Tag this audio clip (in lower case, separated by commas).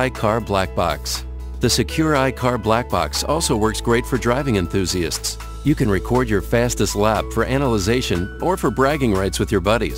speech, music